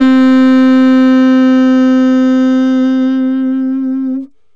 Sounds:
woodwind instrument, Musical instrument, Music

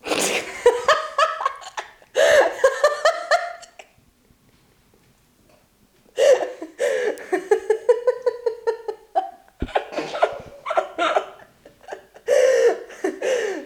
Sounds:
Human voice, Laughter

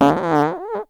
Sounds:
Fart

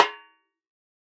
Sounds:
Music, Percussion, Snare drum, Drum, Musical instrument

